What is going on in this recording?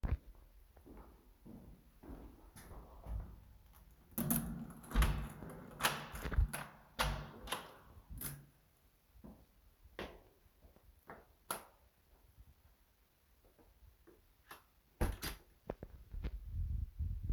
I was in the building hallway coming to the apartment door. I put the key in the keyhole, turned it, opened the door and came in. Next, I switched on the light, gave a quick look around and closed the door.